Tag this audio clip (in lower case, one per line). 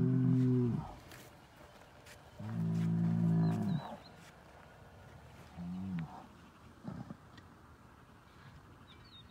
bull bellowing